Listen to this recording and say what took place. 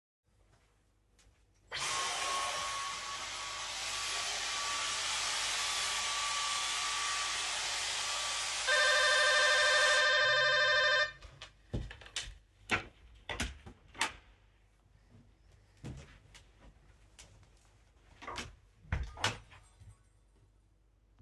I vacuumed some dirt in the hallway, then the doorbell rings. I stoped vacuuming, went to the door open it, let someone in and close the door.